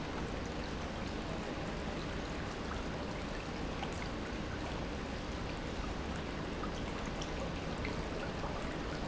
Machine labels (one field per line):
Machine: pump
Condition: normal